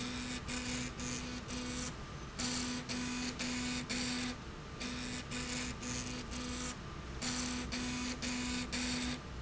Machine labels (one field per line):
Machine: slide rail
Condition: abnormal